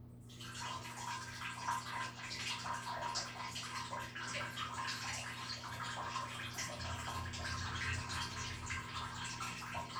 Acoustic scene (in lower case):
restroom